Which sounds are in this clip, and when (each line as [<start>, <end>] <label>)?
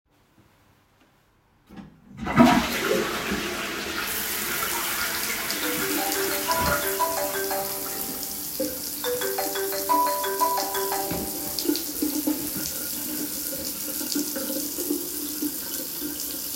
[2.09, 7.40] toilet flushing
[4.08, 16.55] running water
[5.65, 11.71] phone ringing